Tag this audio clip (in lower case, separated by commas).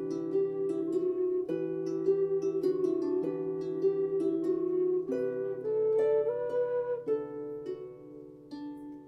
music, zither